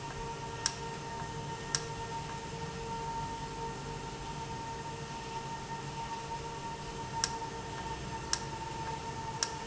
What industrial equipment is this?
valve